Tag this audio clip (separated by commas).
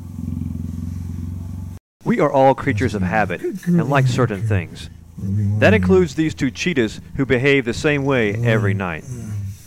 Animal, Purr, Speech